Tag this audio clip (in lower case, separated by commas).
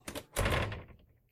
home sounds, door